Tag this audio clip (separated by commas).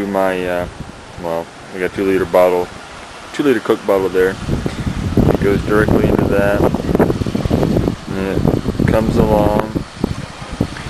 Speech, Rain on surface